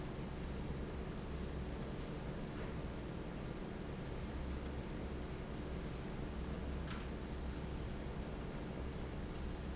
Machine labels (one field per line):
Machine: fan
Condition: normal